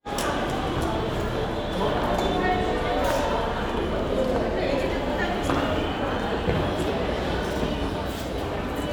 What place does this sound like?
crowded indoor space